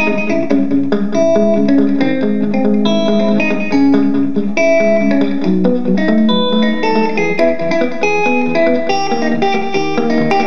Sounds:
Music, Plucked string instrument, Electric guitar, Musical instrument, Guitar

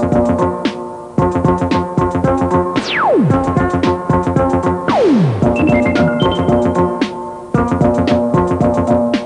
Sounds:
Music

